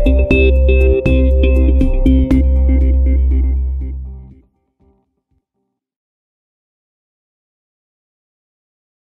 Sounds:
music, background music

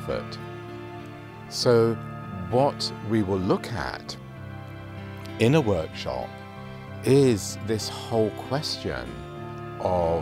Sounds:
music, speech

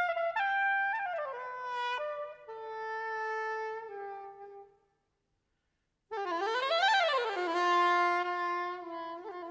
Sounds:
brass instrument, musical instrument, clarinet, music

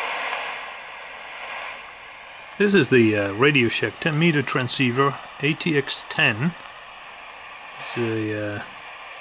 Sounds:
radio, speech

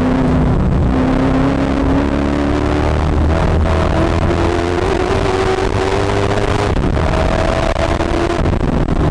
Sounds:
motor vehicle (road), car, vehicle

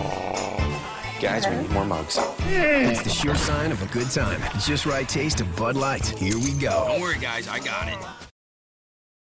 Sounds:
yip, speech, music

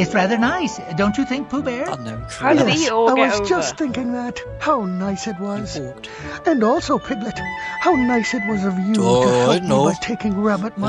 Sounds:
speech, outside, rural or natural, music

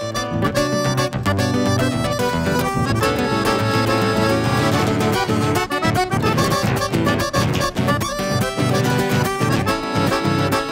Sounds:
musical instrument, accordion, acoustic guitar, plucked string instrument, music, guitar

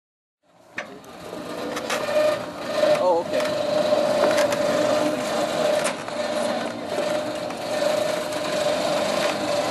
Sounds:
speech, outside, urban or man-made

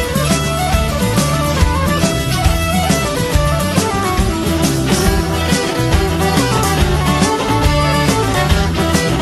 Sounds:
music

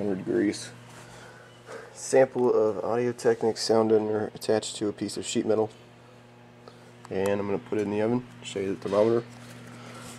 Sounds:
speech

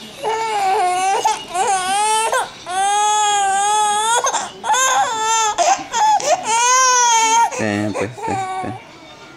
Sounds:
infant cry, baby crying, speech

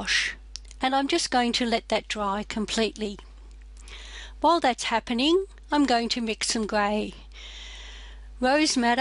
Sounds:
speech

